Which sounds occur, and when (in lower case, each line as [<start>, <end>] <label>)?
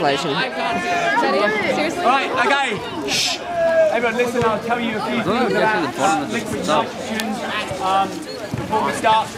[0.00, 9.35] hubbub
[0.00, 9.35] wind
[0.01, 0.52] man speaking
[0.01, 9.35] crowd
[2.02, 2.24] man speaking
[2.35, 2.86] man speaking
[3.02, 3.50] human voice
[3.90, 6.88] man speaking
[7.06, 8.12] man speaking
[8.48, 9.25] man speaking